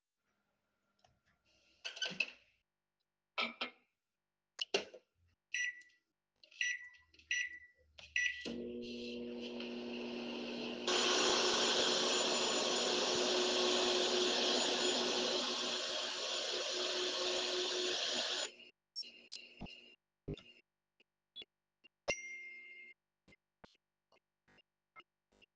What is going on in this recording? I started the microwave in the kitchen. Then a vacuum cleaner started and my phone gave a notification